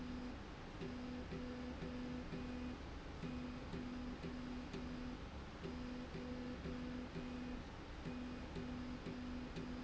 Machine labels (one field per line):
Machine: slide rail